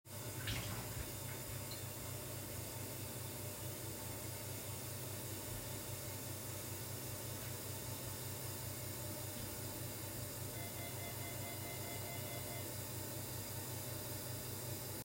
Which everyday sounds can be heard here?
running water, bell ringing